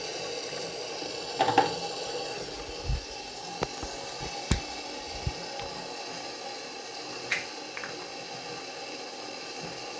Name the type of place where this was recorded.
restroom